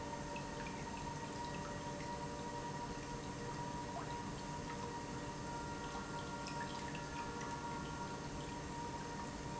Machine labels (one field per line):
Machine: pump